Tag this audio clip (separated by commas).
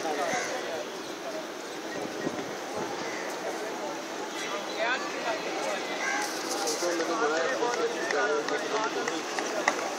Speech